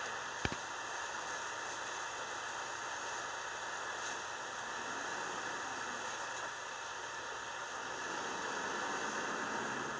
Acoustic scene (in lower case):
bus